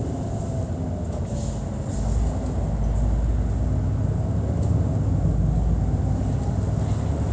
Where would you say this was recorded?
on a bus